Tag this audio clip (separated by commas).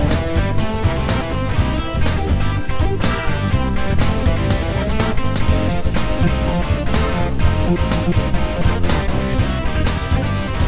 Music, Plucked string instrument, Musical instrument